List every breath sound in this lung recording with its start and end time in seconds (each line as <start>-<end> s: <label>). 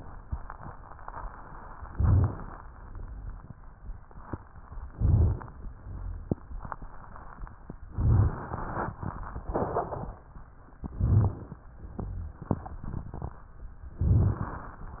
1.86-2.54 s: inhalation
1.88-2.37 s: rhonchi
4.86-5.54 s: inhalation
4.93-5.43 s: rhonchi
7.89-8.58 s: inhalation
7.91-8.41 s: rhonchi
10.93-11.61 s: inhalation
10.95-11.44 s: rhonchi
13.98-14.55 s: rhonchi
13.98-14.78 s: inhalation